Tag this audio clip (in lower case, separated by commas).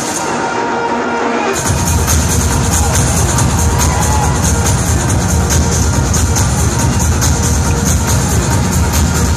techno, electronic music, music